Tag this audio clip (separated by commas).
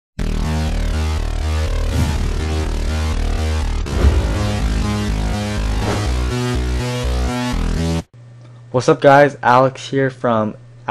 Music, Speech, inside a small room